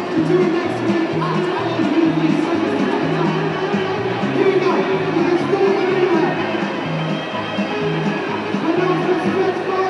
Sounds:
Music, Speech, inside a public space

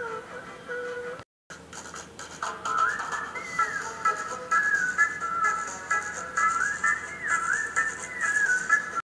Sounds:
Music

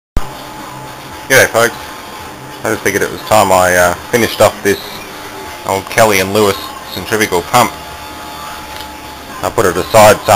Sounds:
Tools, Speech

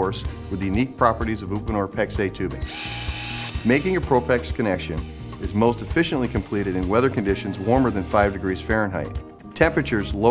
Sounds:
Speech, Music, Tools

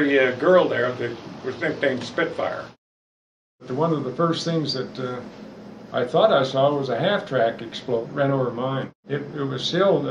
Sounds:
Speech

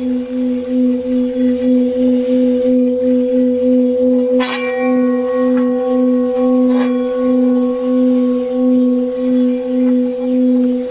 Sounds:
singing bowl

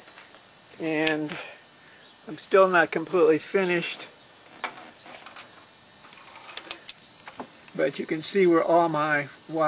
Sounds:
Speech

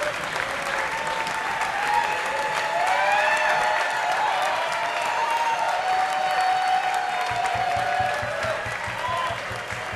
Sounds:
Applause, Music, Speech

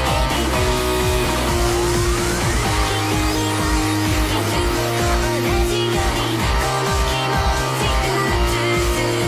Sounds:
Musical instrument, Electric guitar, playing electric guitar, Music, Guitar

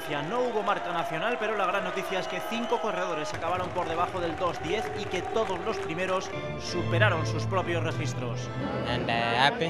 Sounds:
Speech, outside, urban or man-made

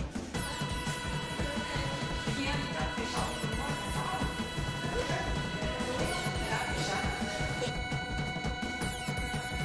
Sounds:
Music, Speech

